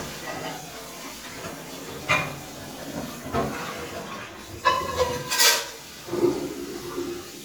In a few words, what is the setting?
kitchen